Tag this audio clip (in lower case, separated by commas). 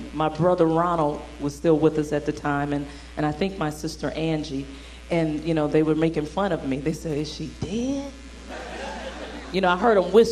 speech